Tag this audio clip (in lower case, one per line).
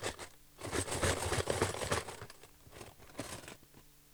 domestic sounds
silverware